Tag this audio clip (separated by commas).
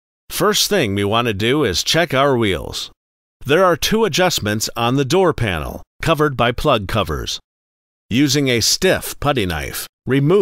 Speech